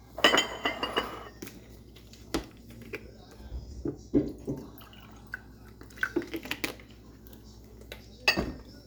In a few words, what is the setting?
kitchen